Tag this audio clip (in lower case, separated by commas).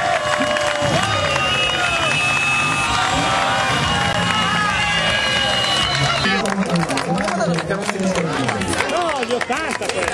outside, urban or man-made, speech